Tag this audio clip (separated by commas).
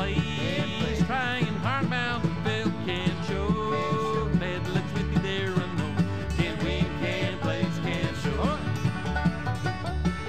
Bluegrass, Music, Soul music